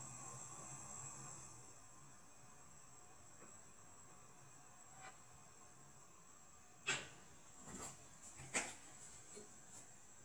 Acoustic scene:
kitchen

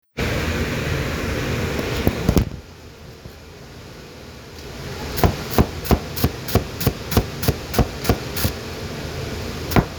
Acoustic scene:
kitchen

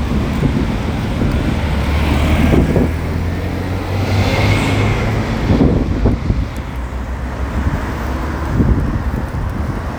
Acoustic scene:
street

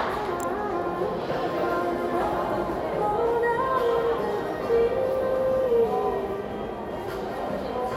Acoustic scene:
crowded indoor space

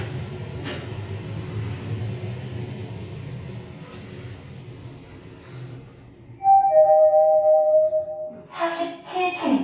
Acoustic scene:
elevator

